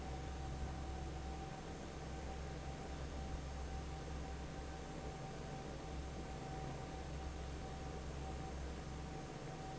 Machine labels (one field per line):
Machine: fan